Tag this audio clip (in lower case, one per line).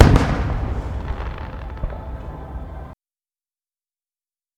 explosion
fireworks